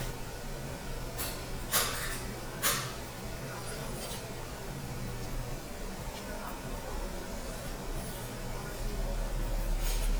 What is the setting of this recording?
restaurant